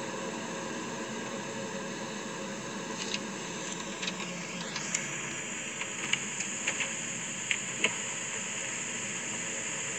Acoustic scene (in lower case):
car